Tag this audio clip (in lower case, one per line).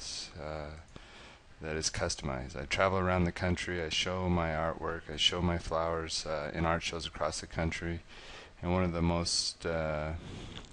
speech